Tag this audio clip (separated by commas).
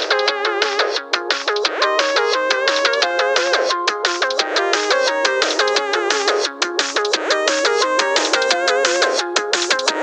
Music